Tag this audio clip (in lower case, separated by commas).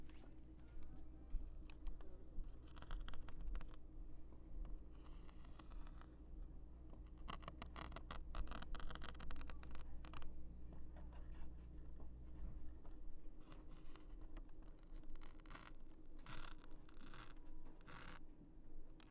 domestic sounds